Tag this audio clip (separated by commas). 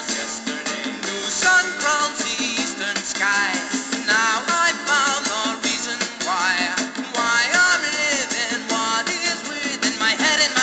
Music